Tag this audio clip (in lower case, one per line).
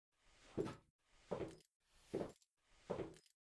footsteps